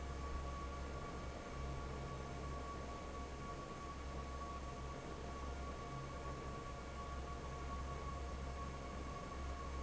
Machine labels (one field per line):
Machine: fan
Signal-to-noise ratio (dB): 6 dB